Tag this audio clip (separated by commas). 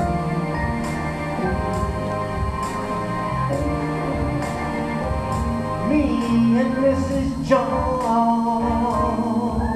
Music, Male singing